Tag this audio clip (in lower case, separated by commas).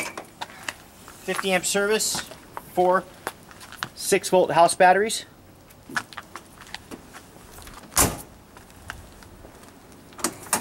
door